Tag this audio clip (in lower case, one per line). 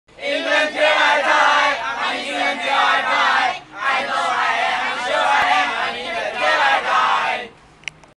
female singing
male singing